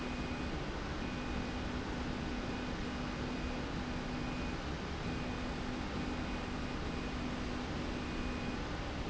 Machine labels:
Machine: slide rail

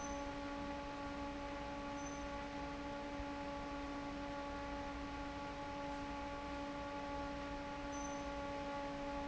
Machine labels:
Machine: fan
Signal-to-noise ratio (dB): 6 dB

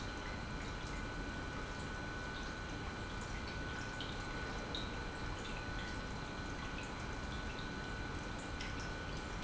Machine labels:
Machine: pump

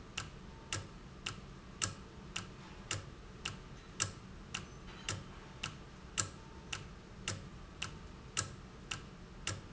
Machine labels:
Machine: valve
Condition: normal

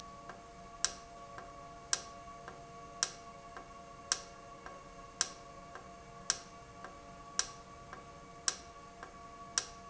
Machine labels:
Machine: valve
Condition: normal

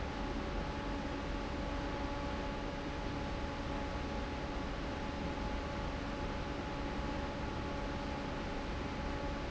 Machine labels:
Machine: fan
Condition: normal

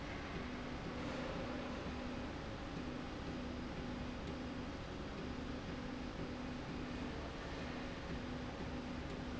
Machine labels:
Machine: slide rail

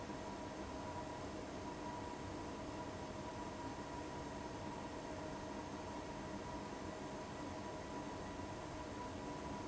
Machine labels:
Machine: fan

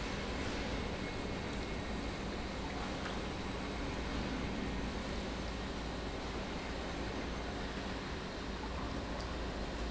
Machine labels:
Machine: pump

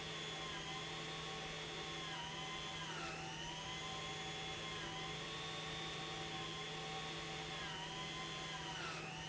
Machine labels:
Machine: pump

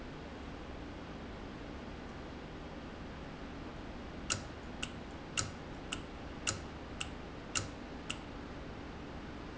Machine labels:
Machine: valve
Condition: normal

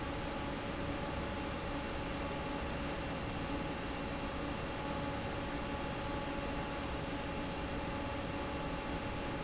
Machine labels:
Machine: fan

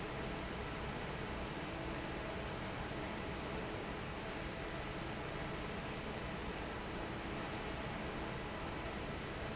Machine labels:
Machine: fan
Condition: normal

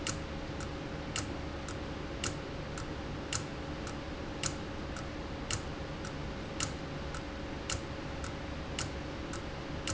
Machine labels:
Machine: valve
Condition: abnormal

